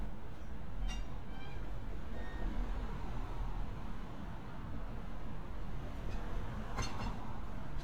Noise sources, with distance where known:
background noise

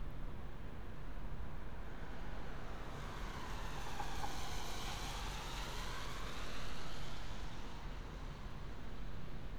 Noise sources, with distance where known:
engine of unclear size

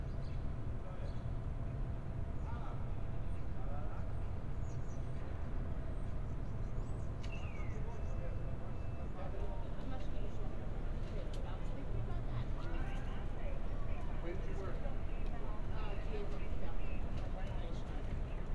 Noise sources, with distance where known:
person or small group talking

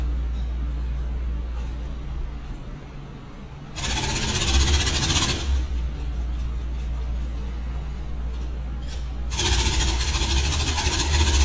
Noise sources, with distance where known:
jackhammer, near

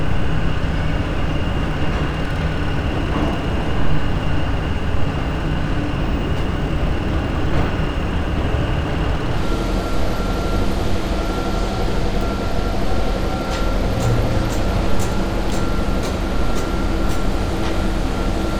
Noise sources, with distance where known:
unidentified impact machinery

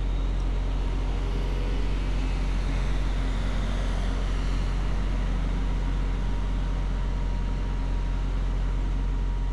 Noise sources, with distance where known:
engine of unclear size

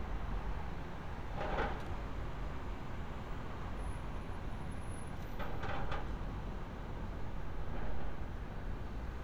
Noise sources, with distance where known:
background noise

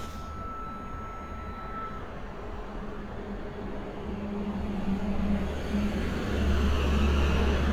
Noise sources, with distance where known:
large-sounding engine, near; unidentified alert signal

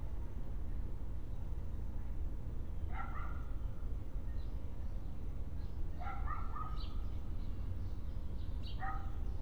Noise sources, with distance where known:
dog barking or whining

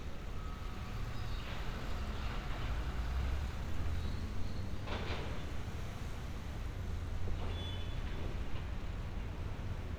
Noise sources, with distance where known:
engine of unclear size, far; non-machinery impact; car horn, far

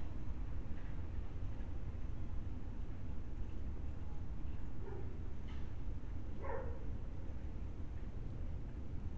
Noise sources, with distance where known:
engine of unclear size; dog barking or whining, far

